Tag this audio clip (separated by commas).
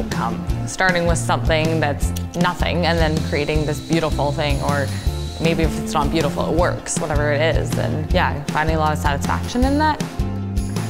Speech, Music